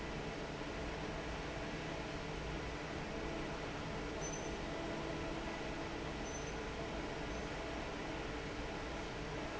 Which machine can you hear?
fan